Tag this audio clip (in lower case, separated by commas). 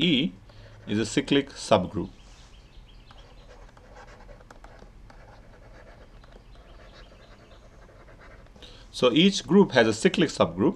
speech